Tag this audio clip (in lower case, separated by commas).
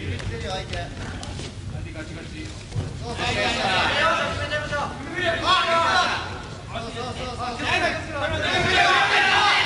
inside a public space, speech